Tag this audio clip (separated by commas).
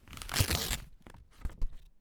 Tearing